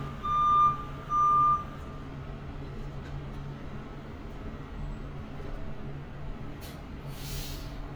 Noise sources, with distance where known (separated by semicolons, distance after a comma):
large-sounding engine; reverse beeper, near